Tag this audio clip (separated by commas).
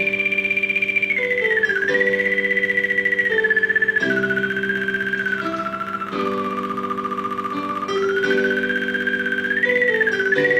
Theremin, Music